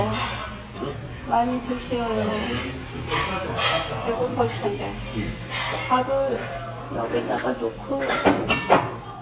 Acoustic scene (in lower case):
restaurant